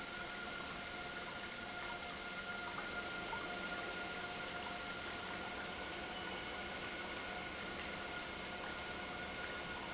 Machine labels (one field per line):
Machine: pump